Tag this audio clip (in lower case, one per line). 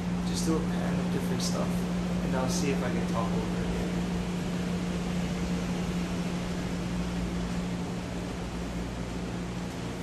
speech